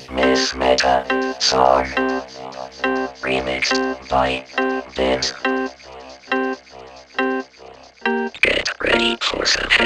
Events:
0.0s-1.1s: speech synthesizer
0.0s-9.8s: music
1.4s-2.0s: speech synthesizer
3.2s-3.8s: speech synthesizer
4.0s-4.5s: speech synthesizer
4.9s-5.4s: speech synthesizer
8.3s-9.8s: speech synthesizer

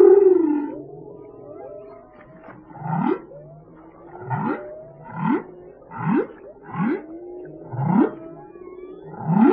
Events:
0.0s-9.5s: whale vocalization

